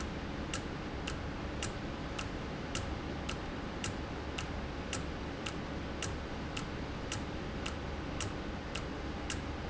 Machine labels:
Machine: valve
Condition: normal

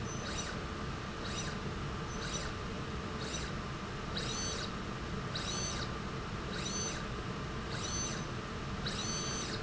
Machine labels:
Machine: slide rail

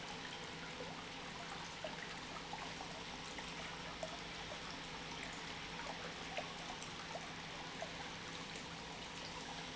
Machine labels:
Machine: pump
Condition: normal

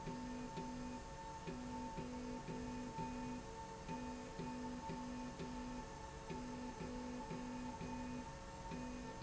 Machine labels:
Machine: slide rail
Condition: normal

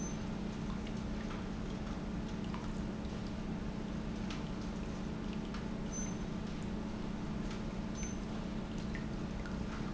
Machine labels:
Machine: pump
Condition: normal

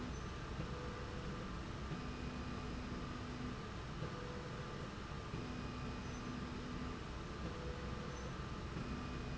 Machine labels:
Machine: slide rail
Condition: normal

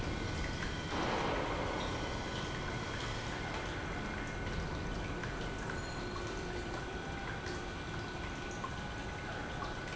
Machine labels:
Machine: pump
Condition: normal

